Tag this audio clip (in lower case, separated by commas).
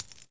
home sounds, coin (dropping)